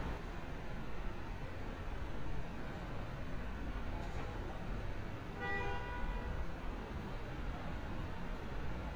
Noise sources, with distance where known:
car horn, far

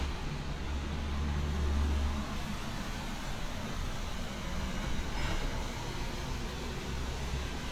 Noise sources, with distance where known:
engine of unclear size

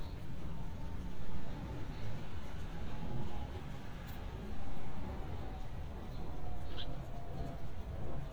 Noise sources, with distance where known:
background noise

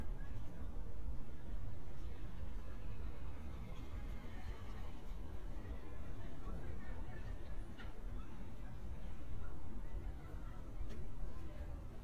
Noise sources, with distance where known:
person or small group talking, far

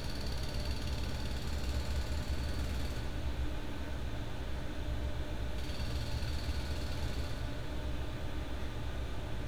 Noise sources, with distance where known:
engine of unclear size, far
jackhammer, far

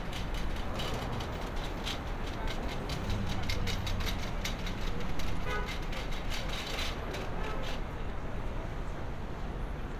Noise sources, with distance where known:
non-machinery impact, near
car horn

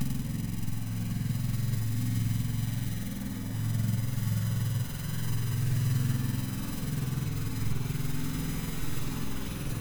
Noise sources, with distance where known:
unidentified impact machinery

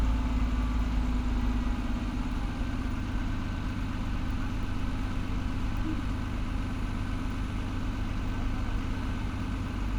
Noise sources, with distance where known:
engine of unclear size, near

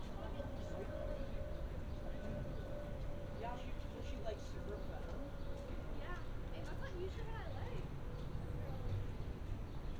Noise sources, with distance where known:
background noise

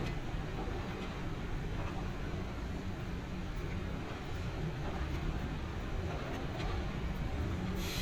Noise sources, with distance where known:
unidentified powered saw

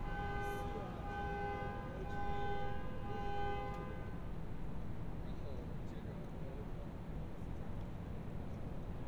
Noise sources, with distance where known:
car alarm, far

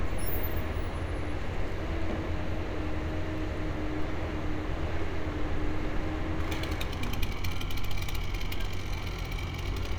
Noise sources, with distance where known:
engine of unclear size, near
unidentified impact machinery, near

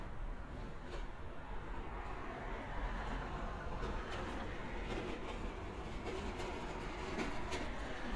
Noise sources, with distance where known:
medium-sounding engine, near

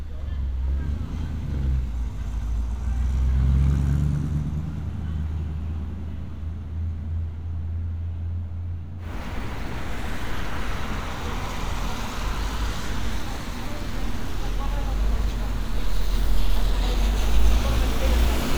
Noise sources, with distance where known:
medium-sounding engine
person or small group talking

